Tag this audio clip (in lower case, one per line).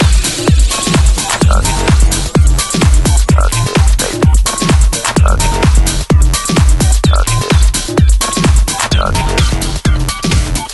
music
electronic music
house music
techno
trance music